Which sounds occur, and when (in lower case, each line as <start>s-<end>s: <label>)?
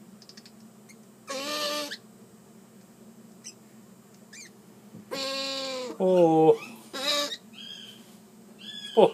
0.0s-9.1s: background noise
0.2s-0.7s: generic impact sounds
0.8s-1.1s: owl
1.2s-2.0s: owl
3.3s-3.7s: owl
4.1s-4.5s: owl
5.1s-5.9s: owl
6.0s-6.5s: man speaking
6.1s-6.8s: bird song
6.9s-7.3s: owl
7.2s-8.0s: bird song
8.5s-9.1s: bird song
8.9s-9.1s: man speaking